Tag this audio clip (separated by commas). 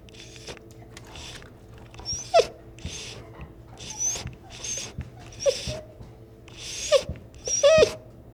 Dog, Animal, pets